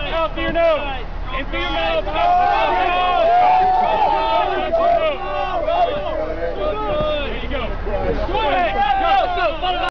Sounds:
Speech

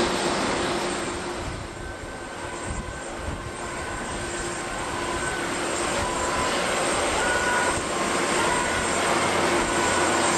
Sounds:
airplane

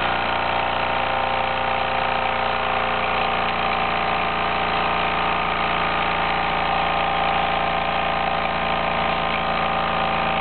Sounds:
Engine

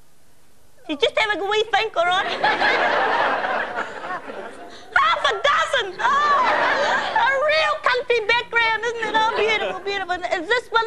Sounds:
Speech

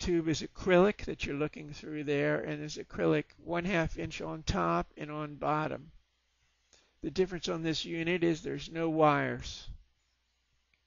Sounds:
Speech

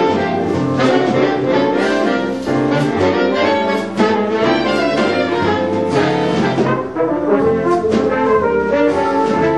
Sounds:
Music

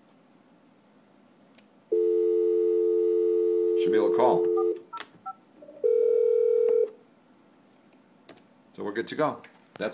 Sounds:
Speech, DTMF, inside a small room, Telephone

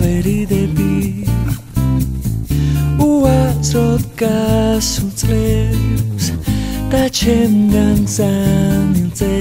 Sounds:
Music

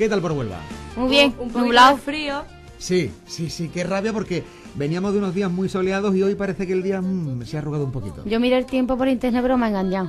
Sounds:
Music, Speech

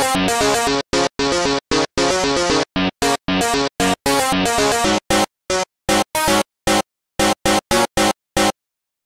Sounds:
Music

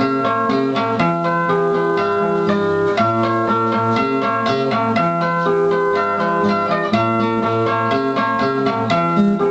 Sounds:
Musical instrument, Plucked string instrument, Guitar

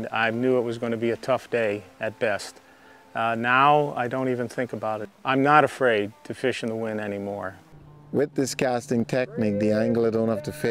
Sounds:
Music, Speech

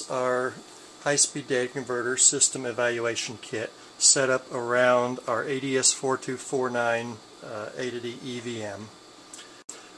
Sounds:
Speech

